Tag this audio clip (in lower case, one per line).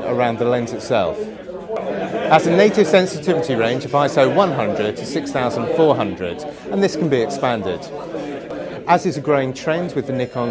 speech